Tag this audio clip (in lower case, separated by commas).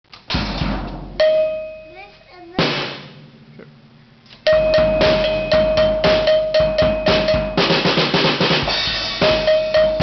rimshot, bass drum, snare drum, percussion, drum, drum kit, cowbell